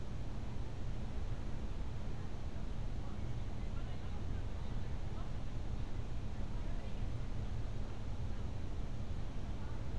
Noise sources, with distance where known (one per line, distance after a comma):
person or small group talking, far